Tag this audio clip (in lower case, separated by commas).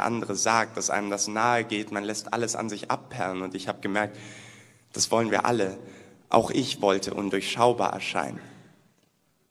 speech